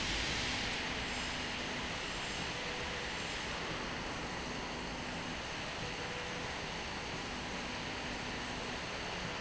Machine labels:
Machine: slide rail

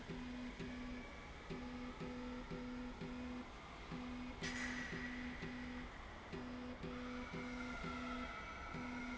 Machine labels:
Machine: slide rail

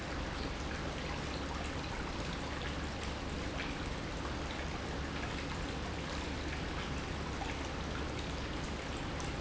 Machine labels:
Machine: pump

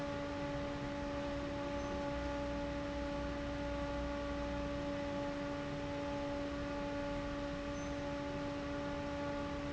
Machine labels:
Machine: fan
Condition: abnormal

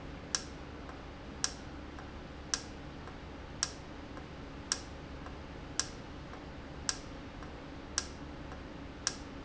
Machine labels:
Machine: valve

